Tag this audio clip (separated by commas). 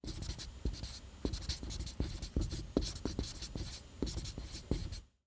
home sounds, Writing